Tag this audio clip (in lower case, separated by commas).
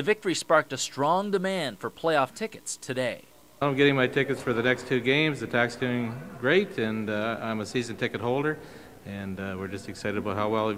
inside a large room or hall, speech